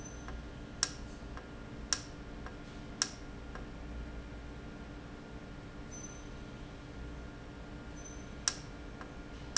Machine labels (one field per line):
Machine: valve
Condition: normal